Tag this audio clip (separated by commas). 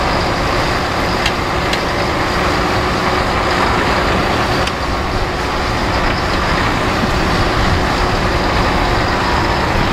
outside, rural or natural, Vehicle